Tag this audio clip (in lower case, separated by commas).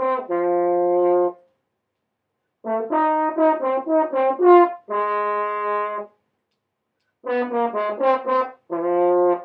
brass instrument, music, playing french horn, musical instrument, french horn